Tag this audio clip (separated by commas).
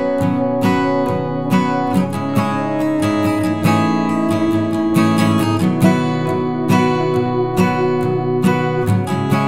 Speech